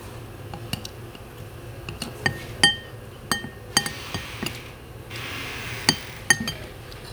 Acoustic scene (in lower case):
restaurant